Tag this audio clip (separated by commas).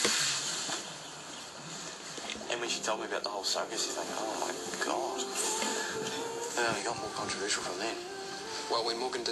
Speech, Music